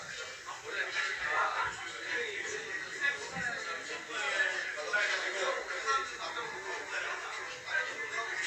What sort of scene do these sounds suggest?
crowded indoor space